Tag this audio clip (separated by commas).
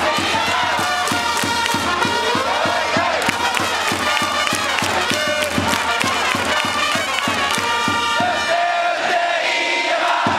Music